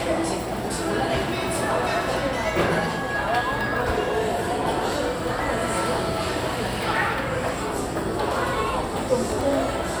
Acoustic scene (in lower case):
crowded indoor space